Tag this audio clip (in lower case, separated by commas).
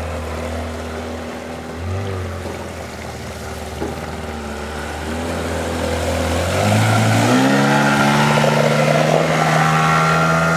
boat, speedboat